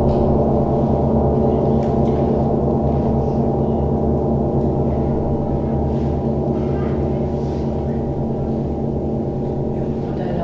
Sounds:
playing gong

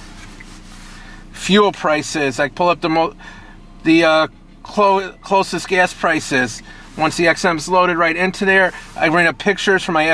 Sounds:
speech

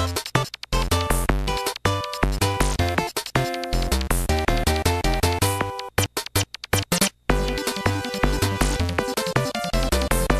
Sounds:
video game music, music

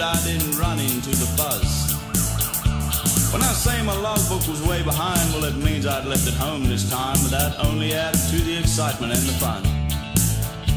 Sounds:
speech, music

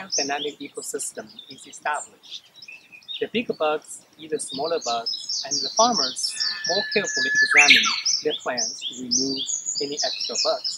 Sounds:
bird, bird vocalization, chirp

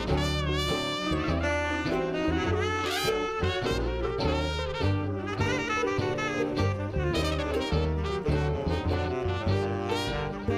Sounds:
music, musical instrument, jazz

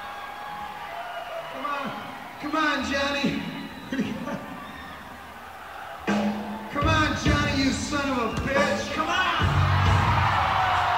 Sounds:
speech, music

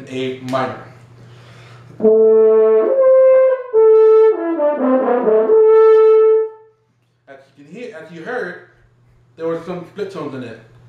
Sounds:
playing french horn

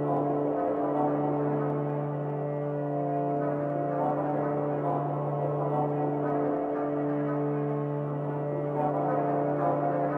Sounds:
music

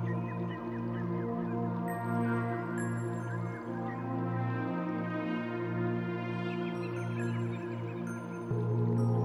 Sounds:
music

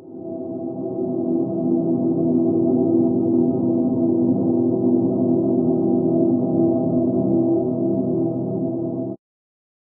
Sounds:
ambient music

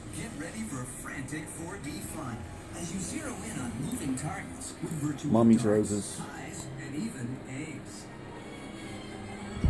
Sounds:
speech, music

